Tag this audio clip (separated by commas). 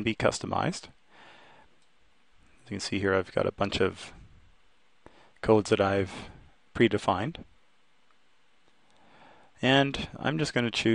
Speech